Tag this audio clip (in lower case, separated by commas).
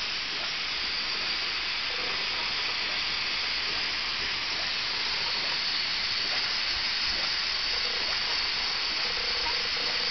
engine